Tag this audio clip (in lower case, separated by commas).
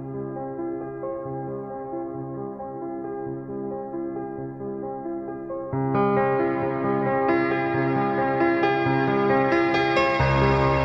ambient music, music